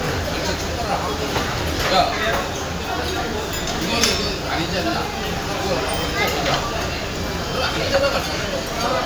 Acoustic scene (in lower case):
crowded indoor space